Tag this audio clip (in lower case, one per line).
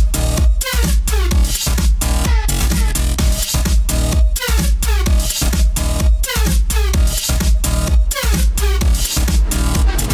music